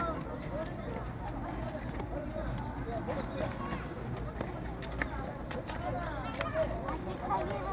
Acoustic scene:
park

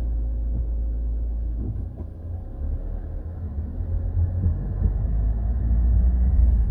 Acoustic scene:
car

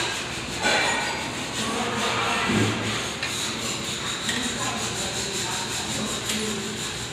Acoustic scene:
restaurant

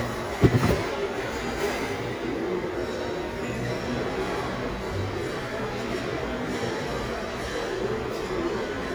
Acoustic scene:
restaurant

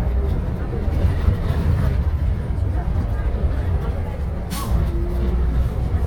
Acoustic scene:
bus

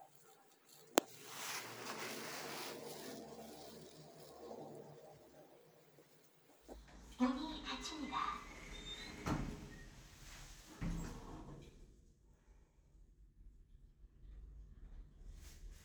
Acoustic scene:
elevator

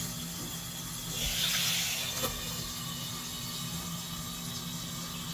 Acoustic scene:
kitchen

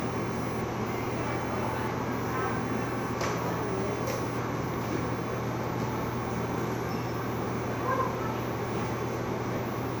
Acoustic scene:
cafe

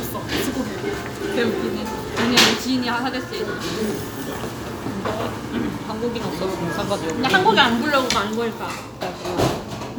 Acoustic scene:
restaurant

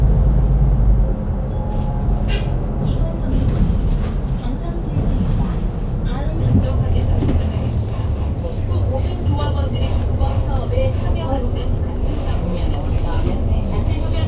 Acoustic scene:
bus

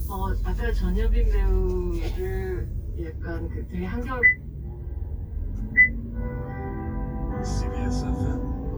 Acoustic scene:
car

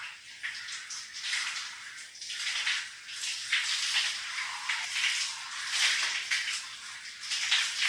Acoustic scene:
restroom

